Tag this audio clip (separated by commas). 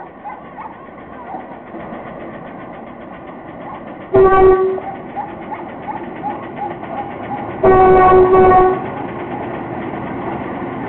Train, Toot, Vehicle, Railroad car